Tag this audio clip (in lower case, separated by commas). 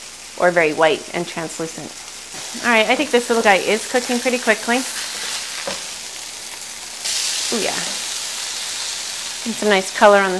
inside a small room, speech